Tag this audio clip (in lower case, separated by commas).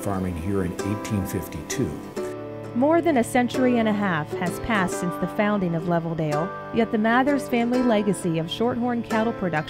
speech, music